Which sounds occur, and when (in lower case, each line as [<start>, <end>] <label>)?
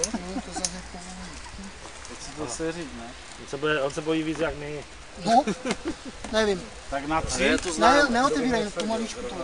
[0.00, 1.82] male speech
[0.00, 9.43] wind
[0.03, 0.07] tick
[0.62, 0.69] tick
[2.22, 3.15] male speech
[3.46, 4.82] male speech
[5.16, 6.66] male speech
[5.69, 5.78] tick
[6.23, 6.30] tick
[6.84, 9.43] male speech
[7.23, 8.75] wind noise (microphone)
[7.57, 7.63] tick
[8.79, 8.85] tick